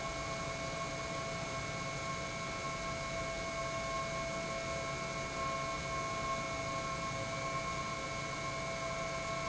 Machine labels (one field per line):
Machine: pump